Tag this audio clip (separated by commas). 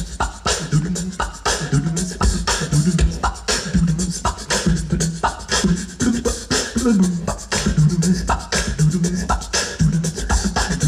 Music